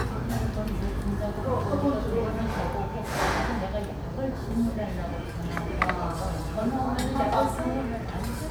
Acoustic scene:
restaurant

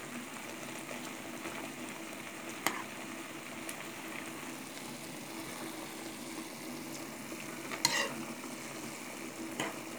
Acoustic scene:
kitchen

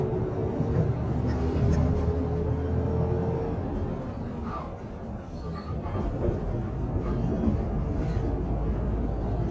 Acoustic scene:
bus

